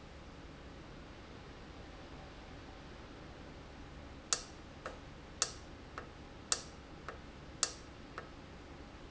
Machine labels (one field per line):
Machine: valve